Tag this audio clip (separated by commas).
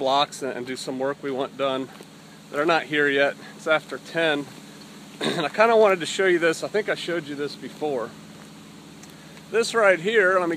Speech